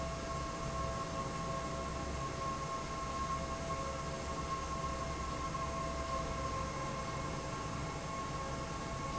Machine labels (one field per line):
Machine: fan